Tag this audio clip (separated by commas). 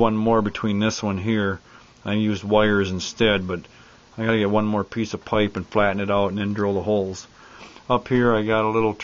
Speech